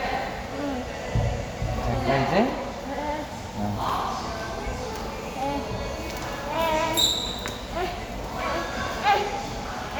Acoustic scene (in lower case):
crowded indoor space